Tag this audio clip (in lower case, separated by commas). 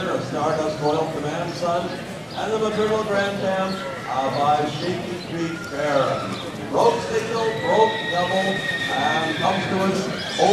speech